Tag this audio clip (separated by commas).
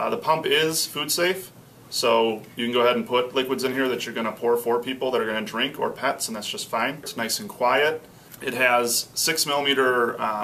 Speech